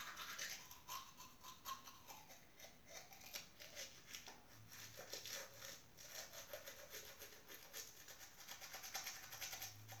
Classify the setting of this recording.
restroom